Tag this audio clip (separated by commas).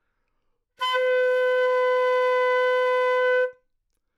Music, Wind instrument, Musical instrument